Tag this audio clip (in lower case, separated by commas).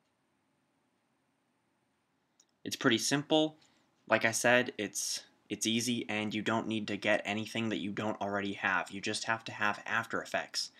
speech